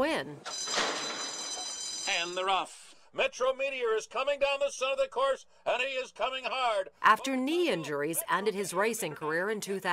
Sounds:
Speech

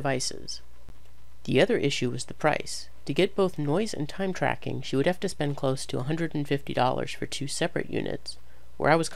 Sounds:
Speech

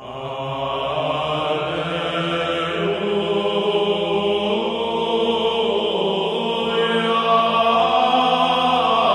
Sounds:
Mantra

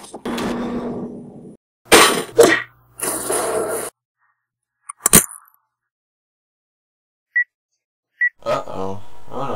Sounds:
Shatter

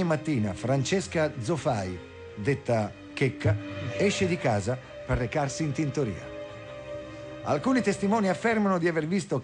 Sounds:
Music, Speech

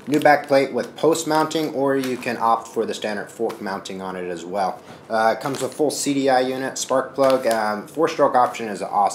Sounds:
Speech

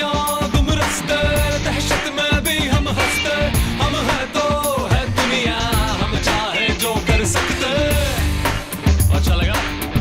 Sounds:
Music

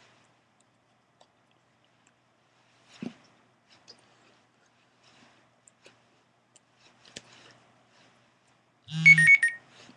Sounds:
inside a small room

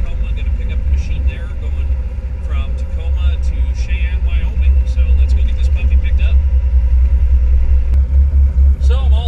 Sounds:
Speech, Vehicle, Truck

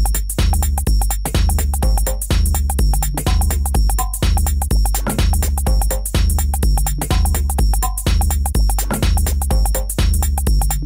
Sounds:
Music, House music

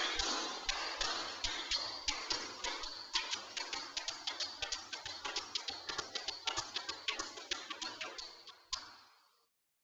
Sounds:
Tap, Music

